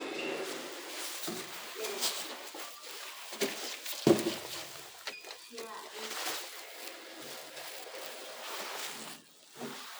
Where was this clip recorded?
in an elevator